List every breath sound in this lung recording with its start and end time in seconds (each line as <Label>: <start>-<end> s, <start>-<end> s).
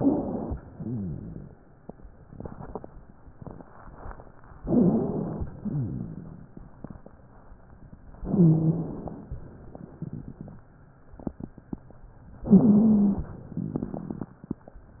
Inhalation: 4.64-5.46 s, 8.19-9.30 s, 12.44-13.40 s
Exhalation: 0.70-1.52 s, 5.47-7.25 s, 9.29-10.69 s
Wheeze: 4.64-5.46 s, 8.22-8.94 s, 12.43-13.18 s
Rhonchi: 0.74-1.57 s, 5.62-6.47 s
Crackles: 5.47-7.25 s, 9.29-10.69 s